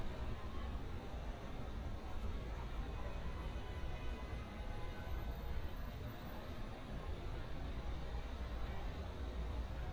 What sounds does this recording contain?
engine of unclear size, car horn